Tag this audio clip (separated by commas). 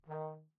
Music, Brass instrument, Musical instrument